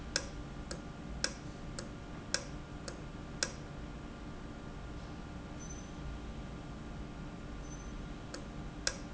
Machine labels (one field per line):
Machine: valve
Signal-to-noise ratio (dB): 0 dB